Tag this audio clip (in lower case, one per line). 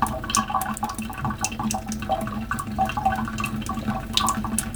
domestic sounds
sink (filling or washing)